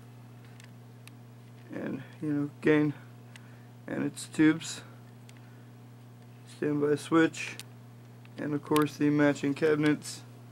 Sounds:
Speech

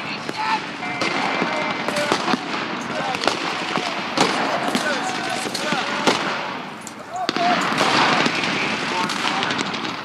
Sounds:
Machine gun, Speech

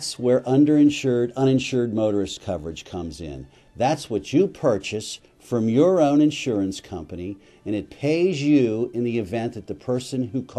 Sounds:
Music, Speech

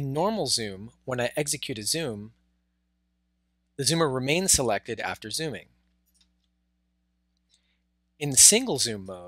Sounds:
Speech

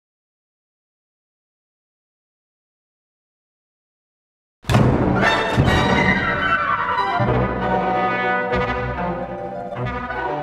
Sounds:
Music, Brass instrument, fiddle, Bowed string instrument

